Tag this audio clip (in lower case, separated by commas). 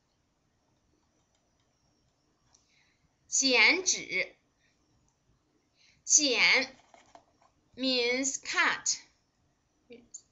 speech